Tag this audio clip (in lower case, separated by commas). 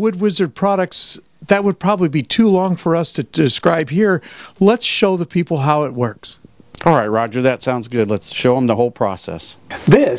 speech